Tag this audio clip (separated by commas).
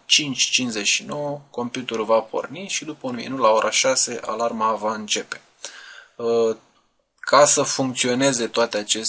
Speech